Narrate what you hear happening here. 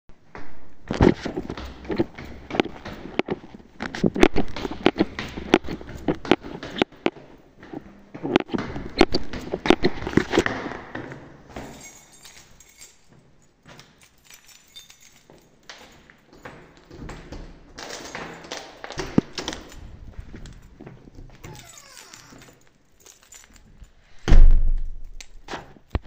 I came back home, took out my keys and unlocked the door, went into my apartment and closed the door behind me